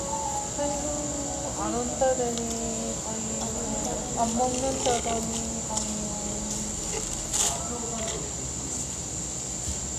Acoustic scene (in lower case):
cafe